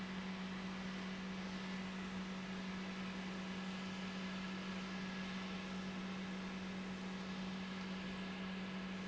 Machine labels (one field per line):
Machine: pump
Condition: normal